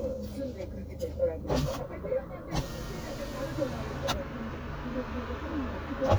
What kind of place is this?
car